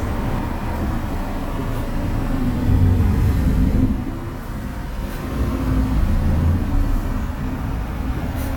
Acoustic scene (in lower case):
bus